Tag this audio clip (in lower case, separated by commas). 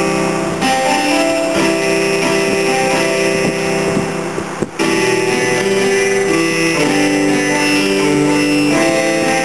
music